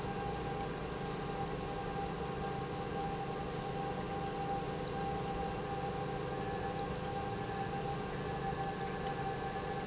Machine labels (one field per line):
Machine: pump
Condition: normal